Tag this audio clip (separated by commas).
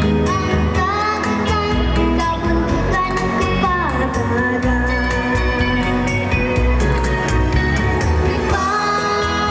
Rhythm and blues, Music